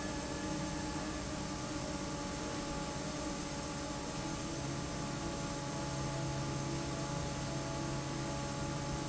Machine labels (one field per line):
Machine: fan